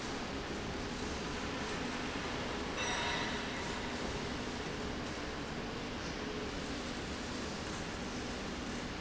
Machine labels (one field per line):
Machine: slide rail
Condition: normal